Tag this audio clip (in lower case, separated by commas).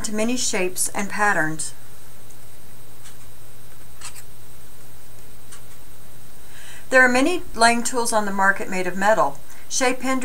speech